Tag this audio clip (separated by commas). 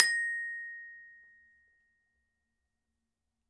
Mallet percussion, Glockenspiel, Percussion, Music, Musical instrument